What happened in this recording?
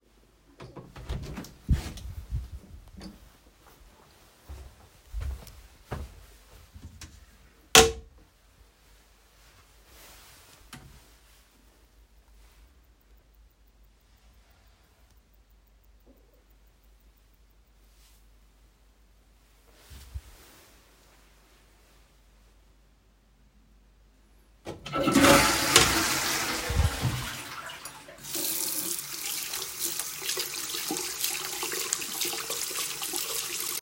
I enter the bathroom and flush the toilet. After that I turn on the water and wash my hands at the sink.